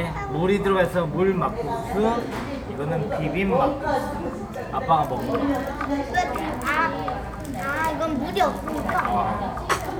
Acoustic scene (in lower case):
restaurant